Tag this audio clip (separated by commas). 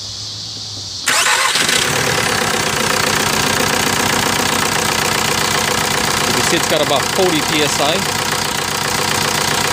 Speech